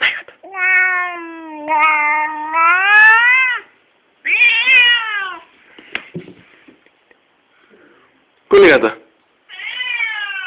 A smack then a cat growls followed by a man speaking